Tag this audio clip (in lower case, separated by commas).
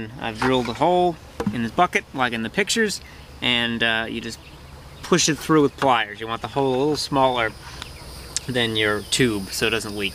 speech